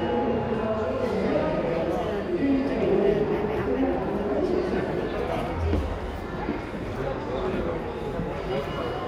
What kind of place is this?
crowded indoor space